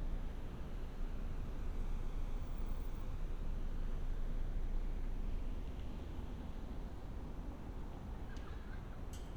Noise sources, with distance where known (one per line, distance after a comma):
unidentified human voice, far